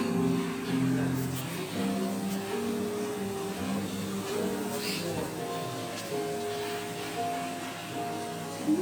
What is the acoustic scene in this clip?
cafe